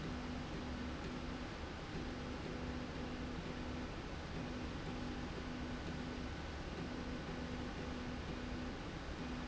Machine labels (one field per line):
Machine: slide rail